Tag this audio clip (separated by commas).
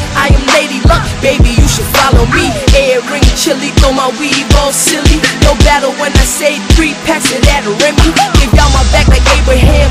Music